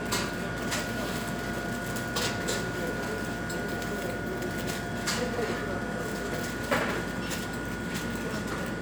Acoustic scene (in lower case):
cafe